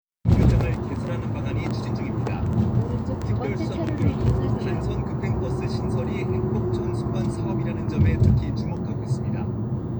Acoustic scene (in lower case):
car